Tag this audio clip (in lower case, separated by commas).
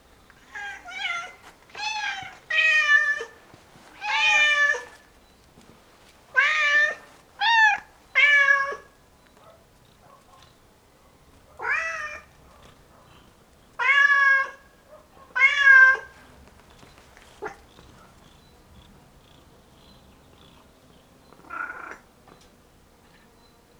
meow, cat, pets, animal